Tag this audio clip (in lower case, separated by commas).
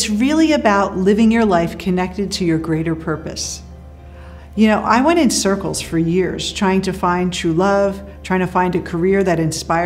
speech, music